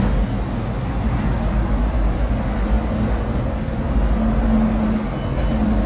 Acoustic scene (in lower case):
street